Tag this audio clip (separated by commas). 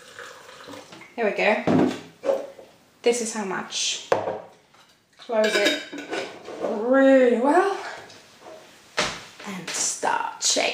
dishes, pots and pans